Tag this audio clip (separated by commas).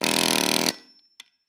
Tools